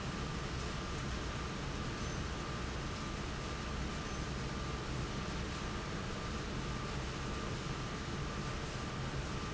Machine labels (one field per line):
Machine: fan